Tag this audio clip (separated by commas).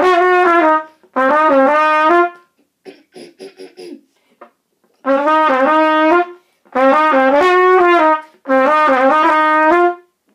Trumpet, Music